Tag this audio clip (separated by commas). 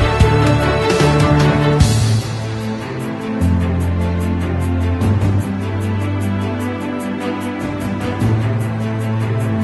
Music